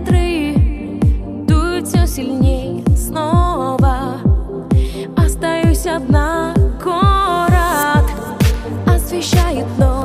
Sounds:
music
soul music

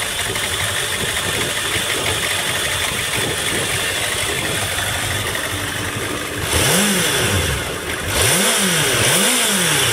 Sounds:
motorcycle
rattle
vehicle

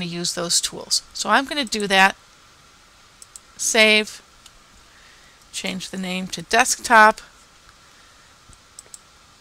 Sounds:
speech

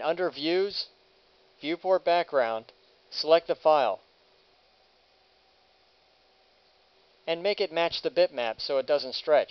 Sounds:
speech

